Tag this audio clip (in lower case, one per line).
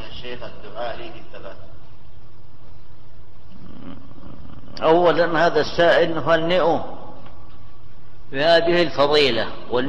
speech